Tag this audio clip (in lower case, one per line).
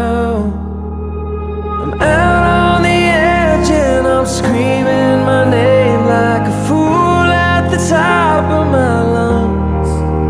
music